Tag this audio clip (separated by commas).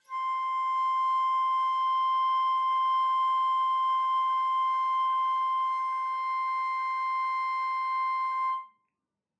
Musical instrument, Music, woodwind instrument